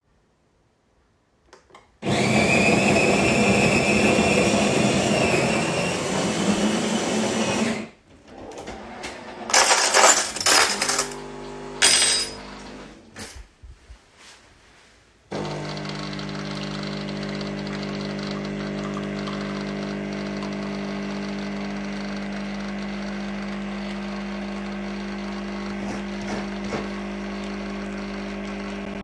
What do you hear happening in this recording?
Im making a coffe getting a spoon out of the drawer and scratching myself